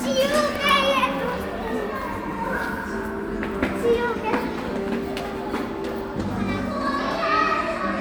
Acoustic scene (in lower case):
cafe